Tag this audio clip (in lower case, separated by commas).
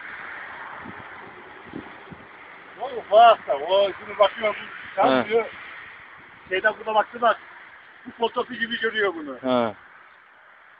speech